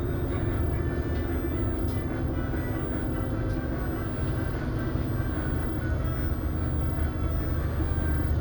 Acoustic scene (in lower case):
bus